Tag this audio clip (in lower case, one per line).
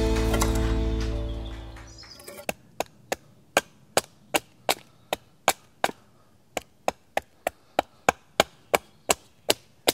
splinter
chop
wood